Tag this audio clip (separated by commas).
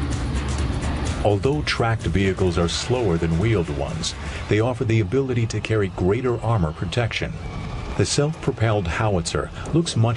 Speech